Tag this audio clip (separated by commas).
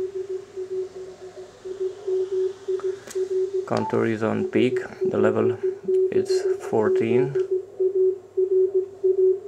Speech, Radio